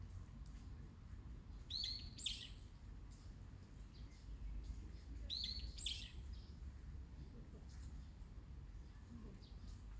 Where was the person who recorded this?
in a park